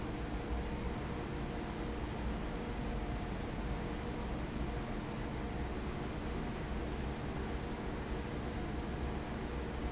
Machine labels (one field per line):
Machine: fan